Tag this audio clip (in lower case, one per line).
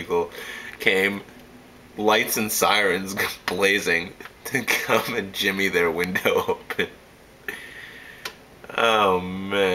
speech